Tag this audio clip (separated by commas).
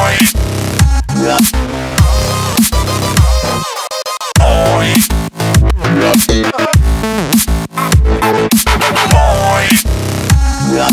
Music